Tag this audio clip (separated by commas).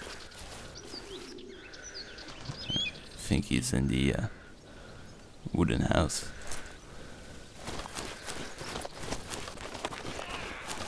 outside, rural or natural, Speech